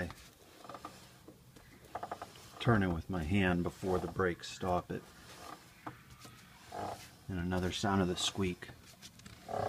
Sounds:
mechanisms
pawl

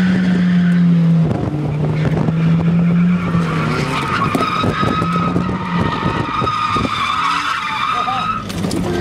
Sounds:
car passing by

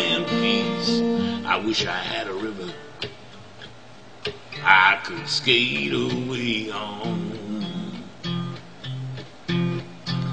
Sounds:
music

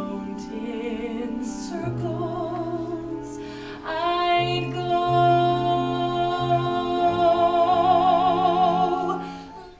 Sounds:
female singing
music

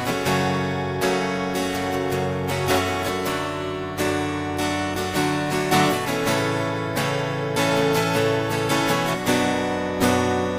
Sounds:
music

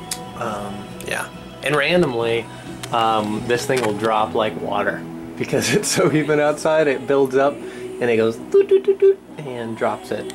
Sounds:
music
speech

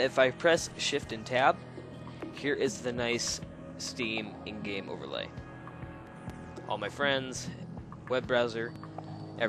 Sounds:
music
speech

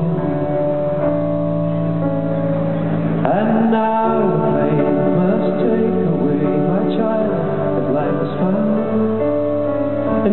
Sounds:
male singing
music

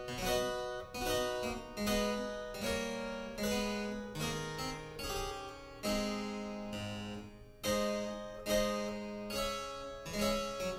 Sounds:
music
piano
musical instrument

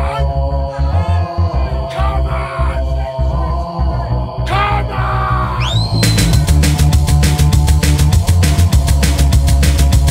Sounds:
music
speech

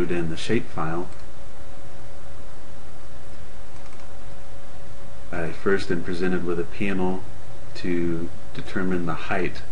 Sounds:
speech

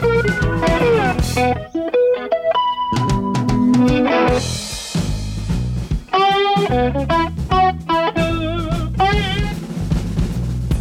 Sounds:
music
rimshot
plucked string instrument
musical instrument
electric guitar
guitar
acoustic guitar

